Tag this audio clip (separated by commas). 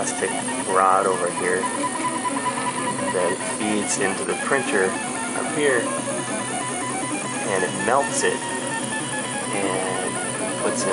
Music, Speech